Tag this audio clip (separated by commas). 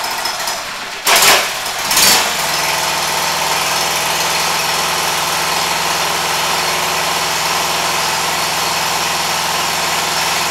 Engine